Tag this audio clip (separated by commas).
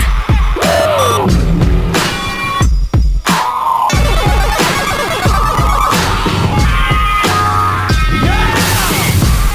Music